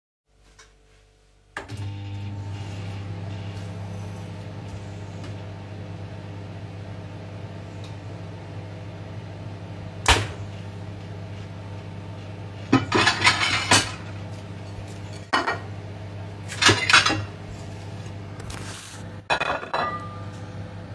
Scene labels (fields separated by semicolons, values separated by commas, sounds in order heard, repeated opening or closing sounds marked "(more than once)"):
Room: kitchen; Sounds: microwave, wardrobe or drawer, cutlery and dishes